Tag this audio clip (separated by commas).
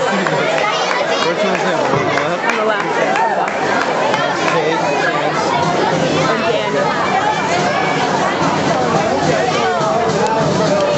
Speech, Music